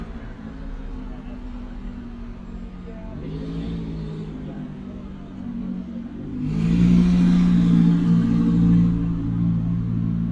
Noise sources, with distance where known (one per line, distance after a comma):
medium-sounding engine, near
person or small group talking